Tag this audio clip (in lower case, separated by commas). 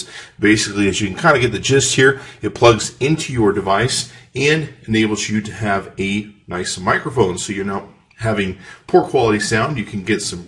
speech